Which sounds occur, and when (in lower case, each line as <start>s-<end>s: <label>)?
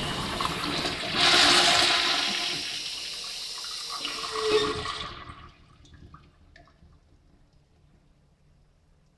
0.0s-9.1s: mechanisms
0.2s-4.6s: toilet flush
4.2s-4.8s: generic impact sounds
5.8s-6.3s: drip
6.5s-7.0s: drip
7.4s-7.6s: drip
9.0s-9.1s: drip